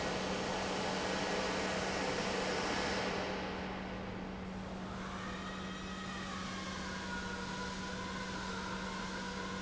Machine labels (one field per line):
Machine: pump